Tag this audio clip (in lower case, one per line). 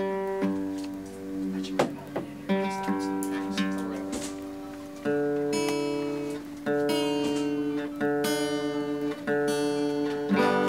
speech
music
strum